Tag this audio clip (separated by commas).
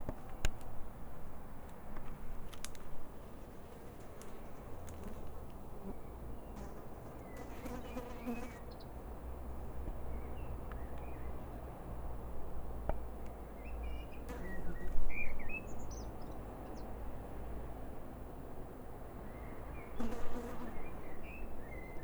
bird song, Animal, Insect, Wild animals, Bird, Buzz, tweet